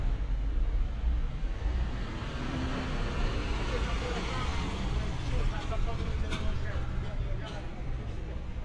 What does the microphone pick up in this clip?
medium-sounding engine